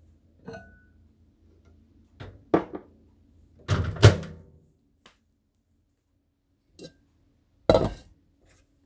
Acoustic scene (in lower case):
kitchen